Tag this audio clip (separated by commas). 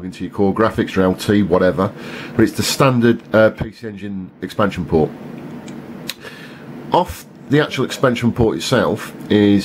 Speech